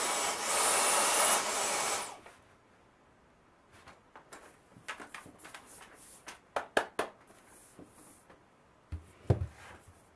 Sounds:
vacuum cleaner cleaning floors

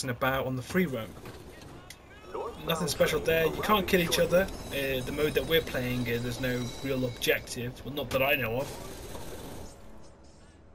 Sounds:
Speech

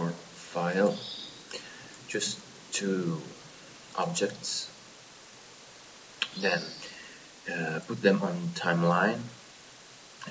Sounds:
Speech

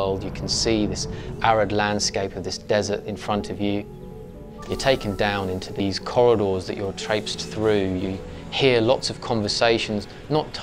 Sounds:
Speech

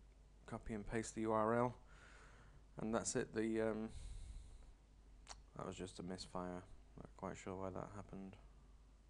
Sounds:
Speech

